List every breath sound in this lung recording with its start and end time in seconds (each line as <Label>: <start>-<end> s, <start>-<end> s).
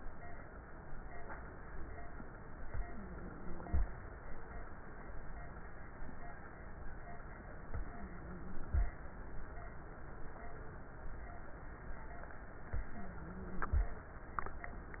Inhalation: 2.67-3.78 s, 7.73-8.85 s, 12.74-13.86 s
Wheeze: 2.85-3.78 s, 7.84-8.65 s, 12.93-13.73 s